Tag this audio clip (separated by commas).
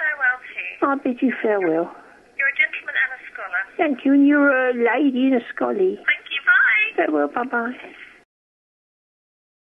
Speech